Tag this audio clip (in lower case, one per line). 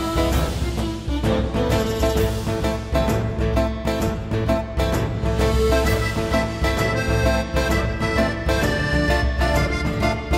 music
accordion